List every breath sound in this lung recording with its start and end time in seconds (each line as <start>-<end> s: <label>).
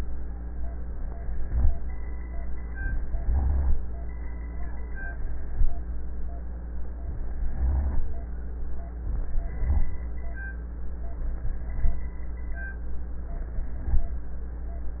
2.81-3.78 s: inhalation
3.15-3.80 s: rhonchi
7.08-8.05 s: inhalation
7.55-8.05 s: rhonchi
9.09-10.06 s: inhalation
9.39-9.89 s: rhonchi